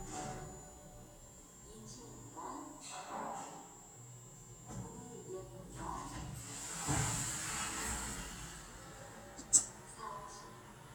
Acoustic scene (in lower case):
elevator